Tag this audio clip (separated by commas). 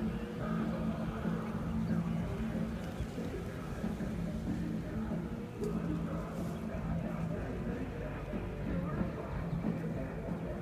Music, Bird